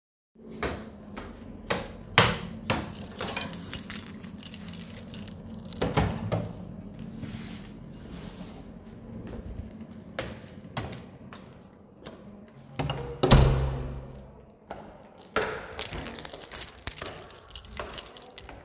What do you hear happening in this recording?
i opened the front door to leave my house